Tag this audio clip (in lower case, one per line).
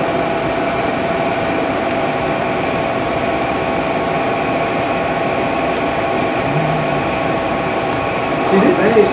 speech